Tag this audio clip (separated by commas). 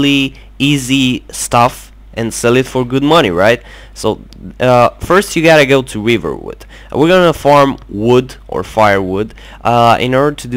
Speech